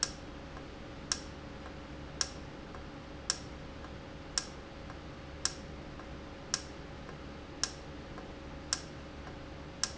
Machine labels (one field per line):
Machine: valve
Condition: normal